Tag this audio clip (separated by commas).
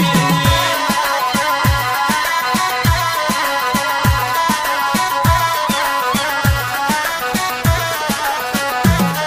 Music